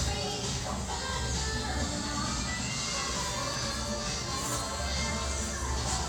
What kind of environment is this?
restaurant